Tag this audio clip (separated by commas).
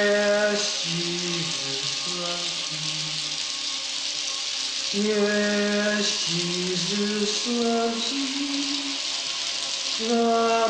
Male singing, Music